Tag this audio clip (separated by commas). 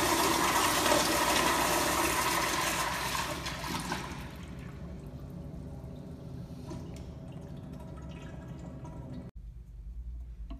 toilet flushing